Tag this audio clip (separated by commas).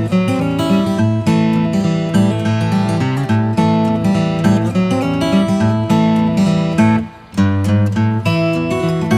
Tick-tock, Music